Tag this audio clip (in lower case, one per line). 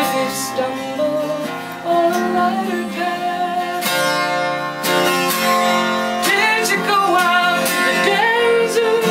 music